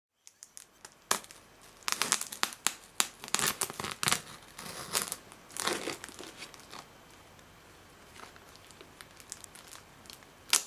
Cracking and crinkling